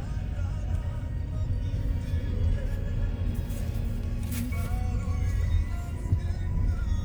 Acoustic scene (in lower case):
car